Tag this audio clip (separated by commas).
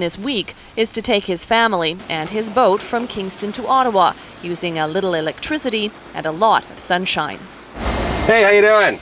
Water vehicle, Vehicle, Speech, speedboat